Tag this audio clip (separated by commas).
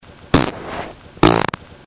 Fart